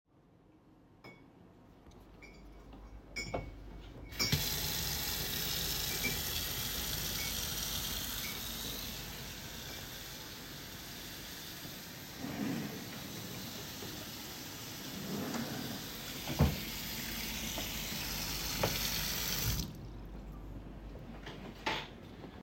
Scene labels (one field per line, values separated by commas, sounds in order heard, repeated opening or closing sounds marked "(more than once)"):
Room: office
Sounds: cutlery and dishes, running water, wardrobe or drawer (more than once)